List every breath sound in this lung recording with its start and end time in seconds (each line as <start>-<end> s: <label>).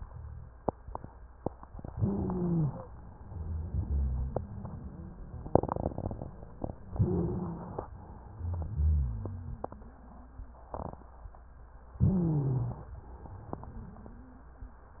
1.90-2.90 s: inhalation
1.90-2.90 s: wheeze
3.18-5.44 s: exhalation
3.18-5.44 s: wheeze
6.92-7.92 s: inhalation
6.92-7.92 s: wheeze
8.10-10.62 s: exhalation
8.26-10.62 s: wheeze
11.94-12.88 s: inhalation
11.94-12.88 s: wheeze
13.02-14.94 s: exhalation
13.02-14.94 s: wheeze